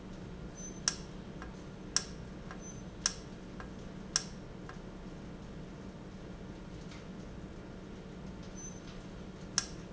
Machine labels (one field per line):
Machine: valve